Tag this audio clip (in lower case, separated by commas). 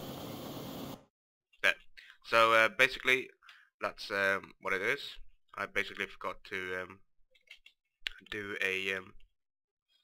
vehicle, helicopter, speech